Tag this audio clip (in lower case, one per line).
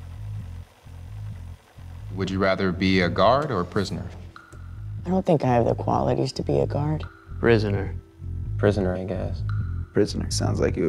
speech
inside a small room